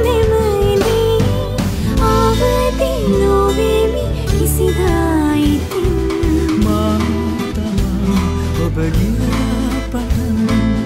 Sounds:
music
singing

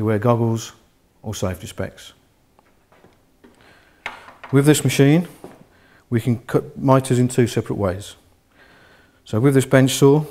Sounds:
speech

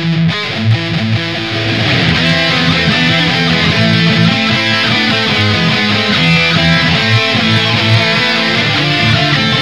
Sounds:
music
plucked string instrument
bass guitar
musical instrument

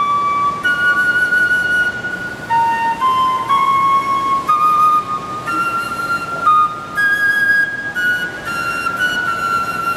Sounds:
musical instrument
woodwind instrument
flute
music

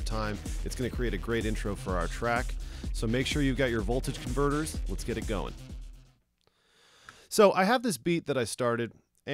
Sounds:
music
speech

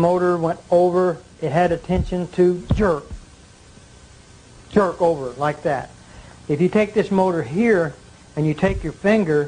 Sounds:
speech

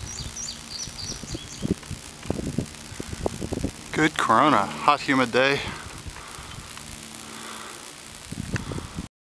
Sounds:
speech

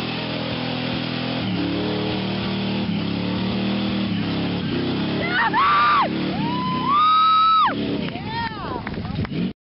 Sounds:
vehicle

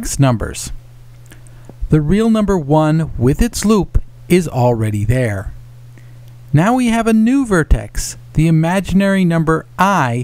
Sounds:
speech

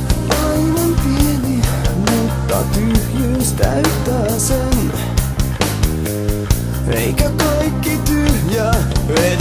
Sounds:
music

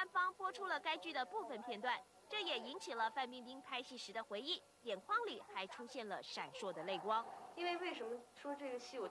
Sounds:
speech

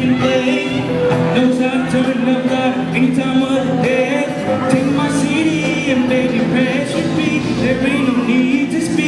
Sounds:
middle eastern music
music

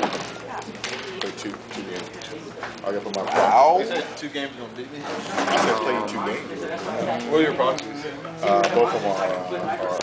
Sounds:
speech

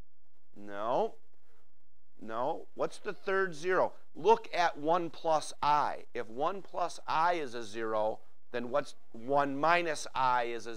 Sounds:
speech

